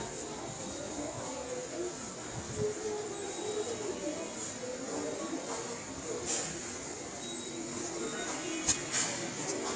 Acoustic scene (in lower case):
subway station